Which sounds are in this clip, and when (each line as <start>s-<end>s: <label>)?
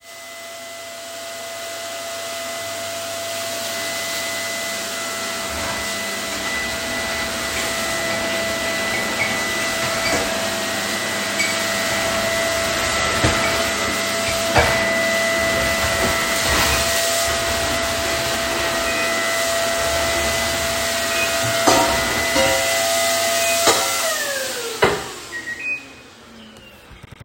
0.0s-27.2s: vacuum cleaner
2.4s-27.2s: microwave
9.2s-9.4s: cutlery and dishes
11.3s-11.6s: cutlery and dishes
13.0s-13.5s: cutlery and dishes
14.5s-14.8s: cutlery and dishes
15.7s-18.5s: running water
21.5s-25.5s: cutlery and dishes